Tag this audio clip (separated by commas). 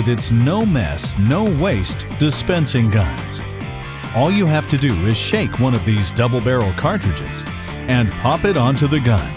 Music, Speech